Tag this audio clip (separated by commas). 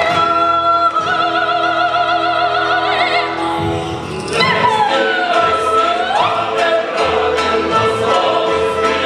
Opera, Music